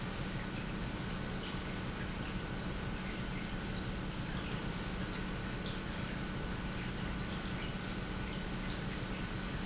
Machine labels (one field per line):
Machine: pump